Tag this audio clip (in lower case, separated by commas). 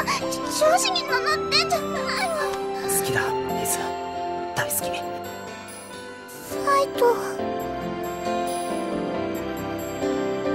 music, tender music, speech